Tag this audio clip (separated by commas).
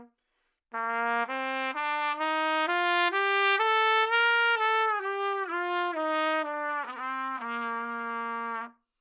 Music, Trumpet, Brass instrument, Musical instrument